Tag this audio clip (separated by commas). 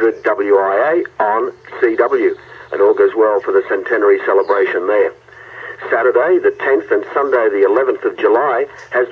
Speech, Radio